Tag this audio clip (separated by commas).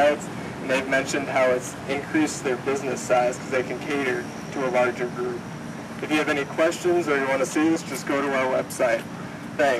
Speech